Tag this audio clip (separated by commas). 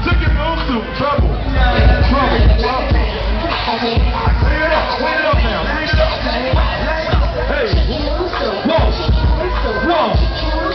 Music